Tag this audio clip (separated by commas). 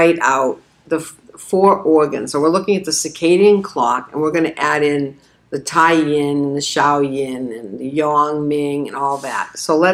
Speech